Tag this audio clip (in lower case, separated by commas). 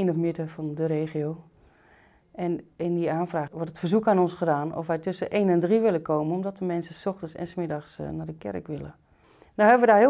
speech